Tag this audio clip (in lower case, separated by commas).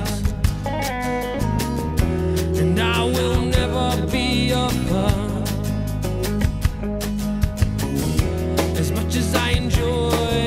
music